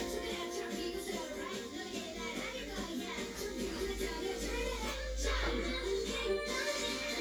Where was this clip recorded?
in a cafe